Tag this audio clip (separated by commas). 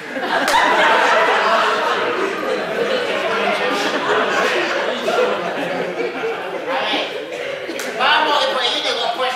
Speech